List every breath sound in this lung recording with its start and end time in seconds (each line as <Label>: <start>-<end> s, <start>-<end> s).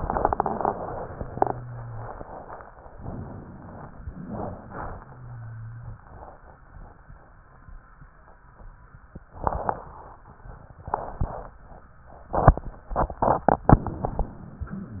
Inhalation: 2.90-4.04 s
Exhalation: 4.08-5.22 s
Rhonchi: 4.86-6.00 s